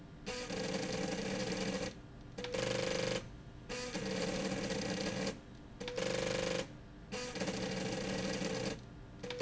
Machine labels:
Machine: slide rail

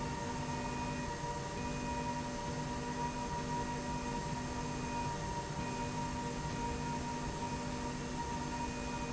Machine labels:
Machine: slide rail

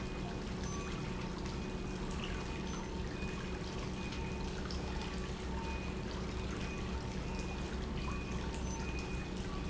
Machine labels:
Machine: pump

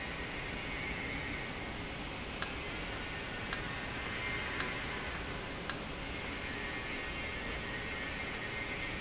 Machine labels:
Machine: valve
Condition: normal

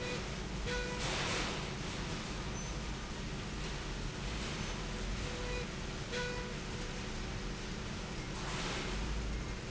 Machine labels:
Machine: slide rail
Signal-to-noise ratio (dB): -6 dB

